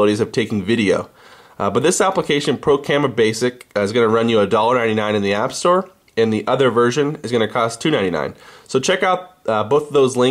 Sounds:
Speech

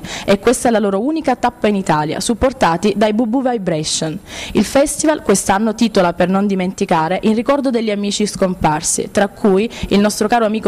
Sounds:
Speech

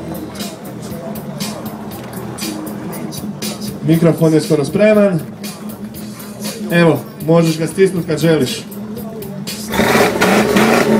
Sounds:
Speech, Music

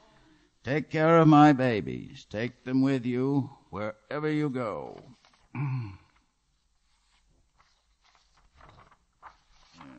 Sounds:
Speech

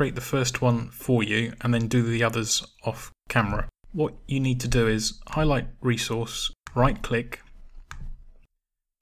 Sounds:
Clicking, Speech

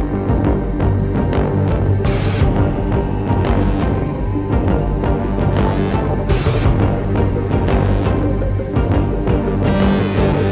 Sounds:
Music

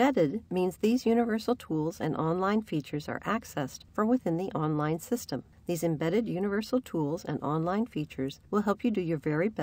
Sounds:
Speech

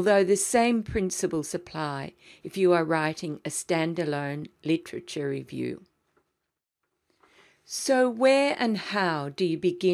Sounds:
Speech

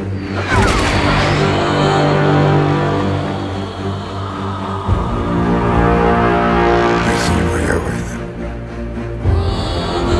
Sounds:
Speech, Music

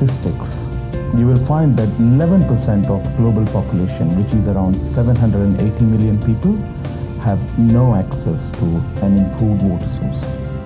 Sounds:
Music, Speech

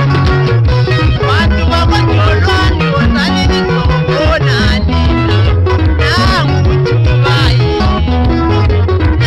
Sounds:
Music

